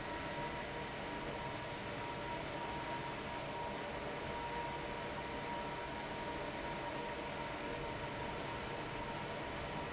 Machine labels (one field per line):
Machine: fan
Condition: abnormal